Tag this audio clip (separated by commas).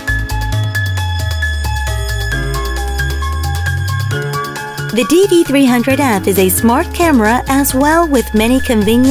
Speech, Music